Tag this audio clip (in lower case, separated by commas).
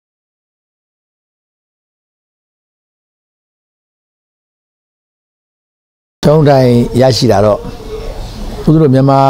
male speech, speech